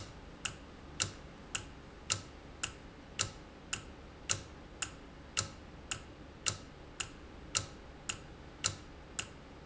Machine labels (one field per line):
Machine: valve